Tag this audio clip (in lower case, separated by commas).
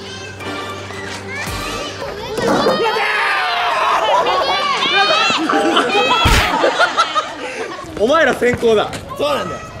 bouncing on trampoline